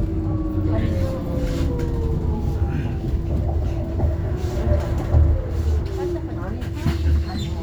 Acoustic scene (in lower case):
bus